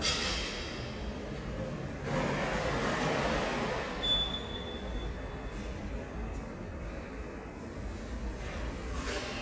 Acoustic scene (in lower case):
subway station